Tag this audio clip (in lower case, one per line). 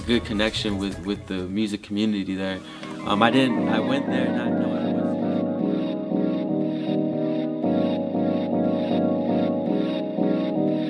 music
speech